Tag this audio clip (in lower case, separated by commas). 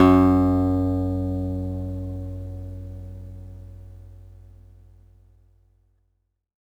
guitar, plucked string instrument, musical instrument, music, acoustic guitar